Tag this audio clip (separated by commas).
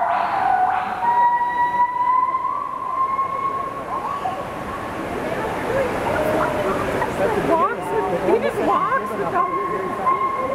gibbon howling